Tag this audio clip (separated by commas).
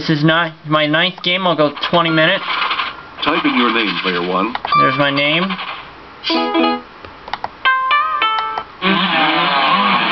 Music, Speech